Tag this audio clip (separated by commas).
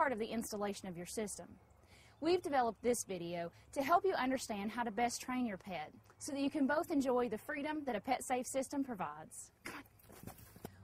Speech